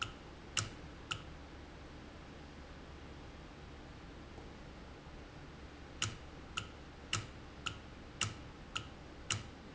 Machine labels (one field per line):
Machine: valve